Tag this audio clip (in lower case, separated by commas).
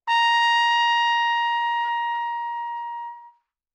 brass instrument, music, trumpet, musical instrument